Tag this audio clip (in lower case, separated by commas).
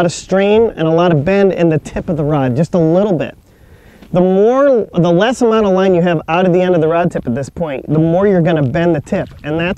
speech